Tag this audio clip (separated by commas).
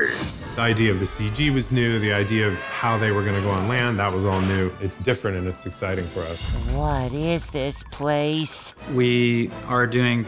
Speech, Music